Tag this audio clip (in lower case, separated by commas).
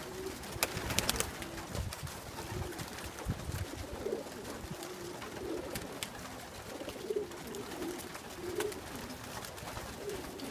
dove, bird